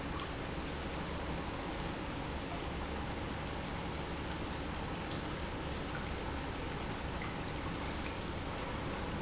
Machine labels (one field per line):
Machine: pump